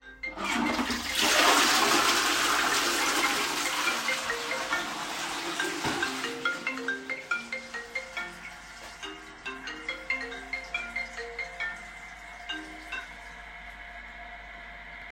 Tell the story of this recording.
An alarm from my mother's phone started ringing. I flushed the toiled and left my phone behind. Then I walked into the hallway and picked up the phone.